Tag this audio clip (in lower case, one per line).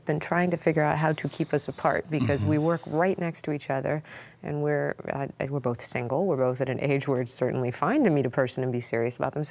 speech